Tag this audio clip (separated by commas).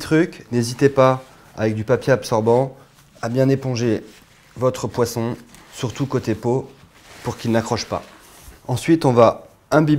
Speech